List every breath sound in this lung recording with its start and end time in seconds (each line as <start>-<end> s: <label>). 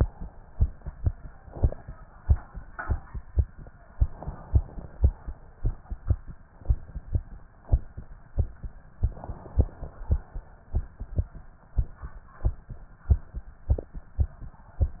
3.94-5.14 s: inhalation
8.98-10.19 s: inhalation